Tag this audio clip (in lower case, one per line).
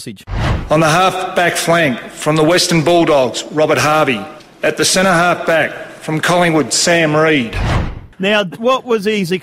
speech
narration
male speech